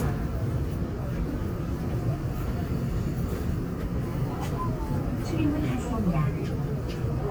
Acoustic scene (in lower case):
subway train